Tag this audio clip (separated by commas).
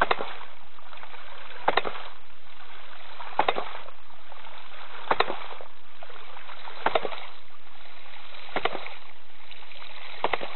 Water